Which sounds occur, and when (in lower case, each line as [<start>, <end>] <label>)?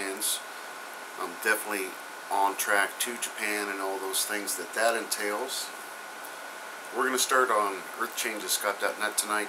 [0.00, 0.38] man speaking
[0.00, 9.45] mechanisms
[1.14, 1.95] man speaking
[2.30, 2.85] man speaking
[3.02, 4.62] man speaking
[4.78, 5.66] man speaking
[6.95, 7.82] man speaking
[7.96, 9.45] man speaking